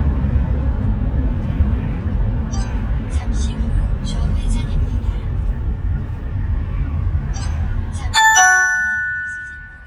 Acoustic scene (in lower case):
car